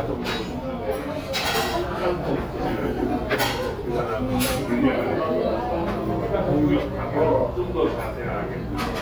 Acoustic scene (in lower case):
restaurant